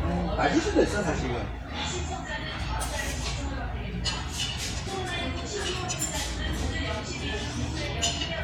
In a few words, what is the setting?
restaurant